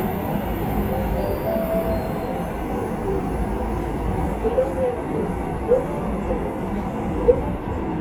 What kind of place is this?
subway train